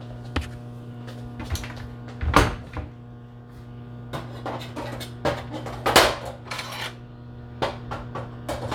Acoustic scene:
kitchen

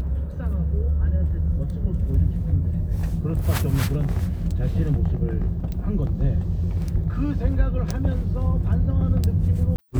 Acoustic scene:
car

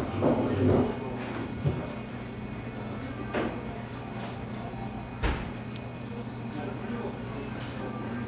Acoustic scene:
crowded indoor space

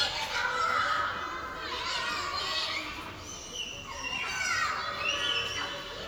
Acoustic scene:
park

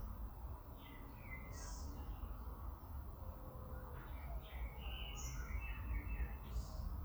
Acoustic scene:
park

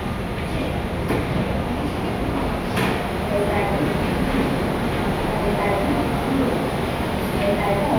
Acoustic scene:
subway station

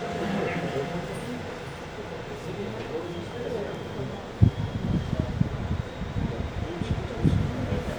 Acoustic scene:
subway train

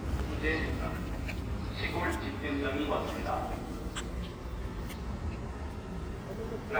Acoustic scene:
residential area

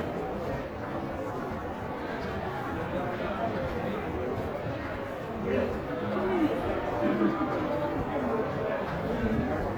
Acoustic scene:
crowded indoor space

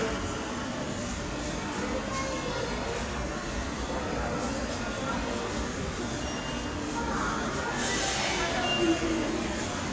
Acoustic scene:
subway station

